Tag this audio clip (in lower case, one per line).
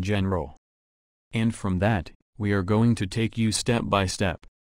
speech